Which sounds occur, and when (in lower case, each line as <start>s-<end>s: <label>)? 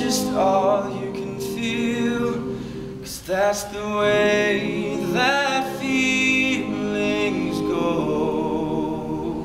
0.0s-9.4s: background noise
2.4s-3.0s: breathing
3.0s-9.4s: man speaking
4.0s-9.4s: choir